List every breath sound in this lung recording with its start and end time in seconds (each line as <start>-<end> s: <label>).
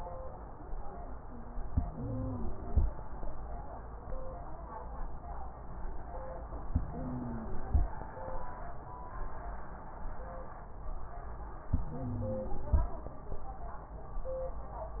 1.65-2.85 s: inhalation
1.65-2.85 s: wheeze
6.69-7.90 s: inhalation
6.69-7.90 s: wheeze
11.69-12.89 s: inhalation
11.69-12.89 s: wheeze